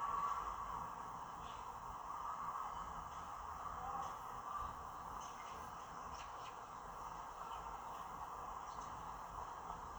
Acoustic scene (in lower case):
park